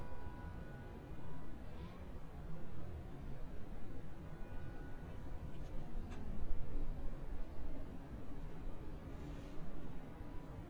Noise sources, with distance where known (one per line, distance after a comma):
car horn, far